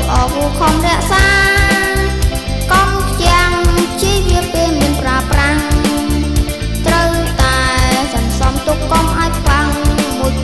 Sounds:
music

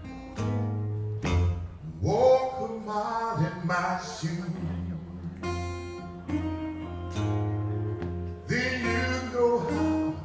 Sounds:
music
speech

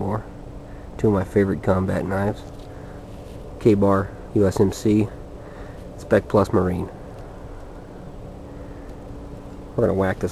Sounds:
speech

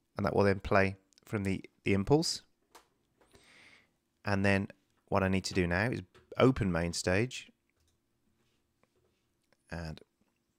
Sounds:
speech

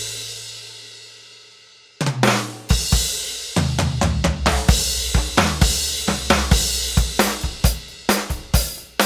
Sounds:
drum kit
drum
music
musical instrument

